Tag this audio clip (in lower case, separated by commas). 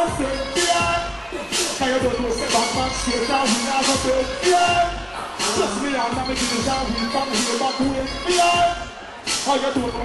music